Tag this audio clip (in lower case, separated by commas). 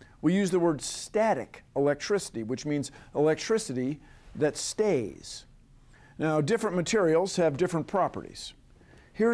speech